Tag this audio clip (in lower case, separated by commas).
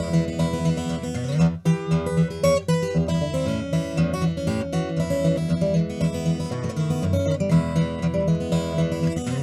guitar, musical instrument, inside a small room, music, acoustic guitar, plucked string instrument